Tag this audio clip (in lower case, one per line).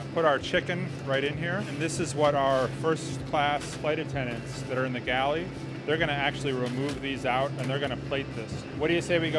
airplane